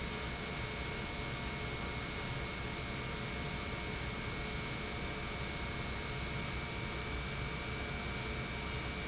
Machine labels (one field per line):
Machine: pump